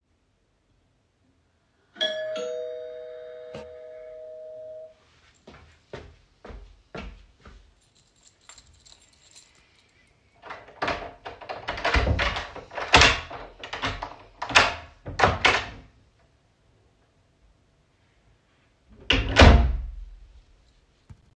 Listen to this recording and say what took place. The doorbell rang and I walked over to it as I already was in the hallway. I brought my keys out of my pocket and inserted the key into the lock and turned it twice to open the door than closed the door after seeing only a letter on my doorstep.